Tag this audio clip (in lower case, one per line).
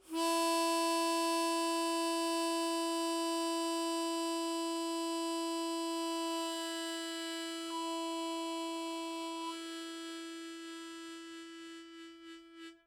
musical instrument
harmonica
music